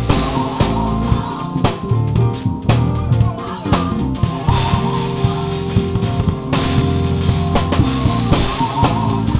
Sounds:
jazz, music, rhythm and blues

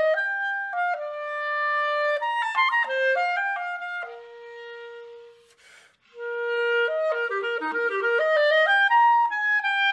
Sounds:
playing oboe

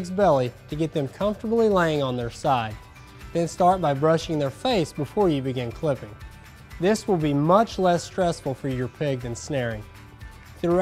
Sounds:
music, speech

